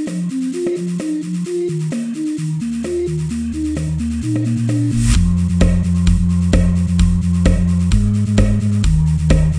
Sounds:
techno, electronic music, music

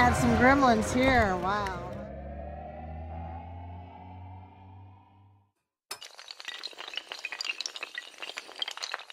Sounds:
speech, inside a public space

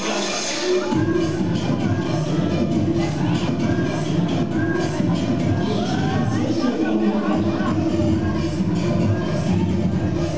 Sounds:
speech, music

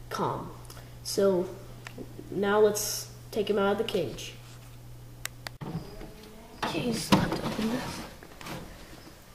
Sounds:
speech, inside a small room

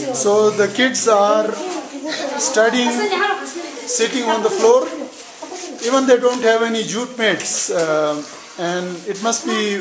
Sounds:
speech, inside a small room

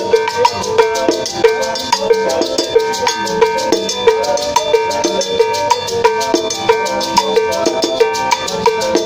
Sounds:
playing bongo

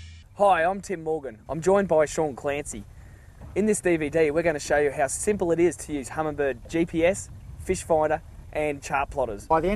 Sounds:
speech

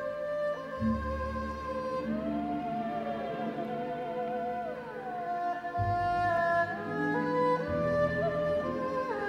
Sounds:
playing erhu

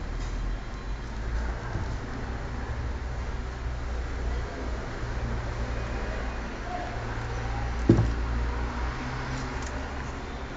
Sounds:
speech

